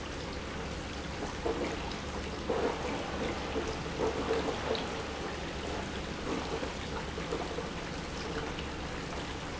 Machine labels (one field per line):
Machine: pump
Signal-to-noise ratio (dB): -6 dB